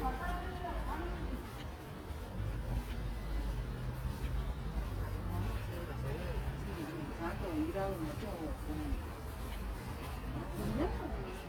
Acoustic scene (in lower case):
residential area